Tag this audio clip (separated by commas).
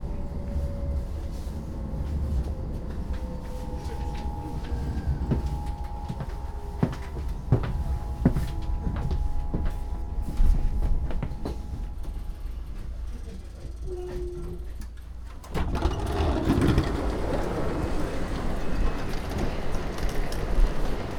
Human group actions, Chatter, Rail transport, Sliding door, Walk, Squeak, Vehicle, Train, Hiss, Door, Domestic sounds